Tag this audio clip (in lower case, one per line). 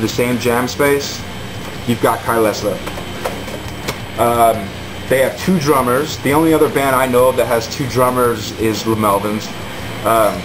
speech
music